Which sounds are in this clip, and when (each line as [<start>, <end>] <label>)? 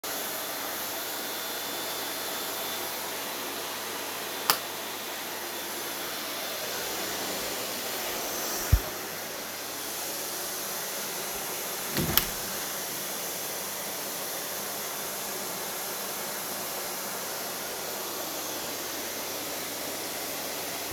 [0.00, 20.92] vacuum cleaner
[4.45, 4.67] light switch
[11.90, 12.36] window